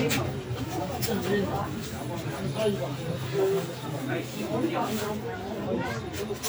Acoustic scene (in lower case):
park